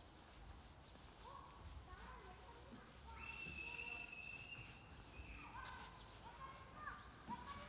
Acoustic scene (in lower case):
park